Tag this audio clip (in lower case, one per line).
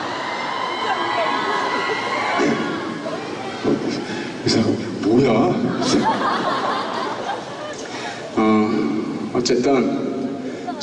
speech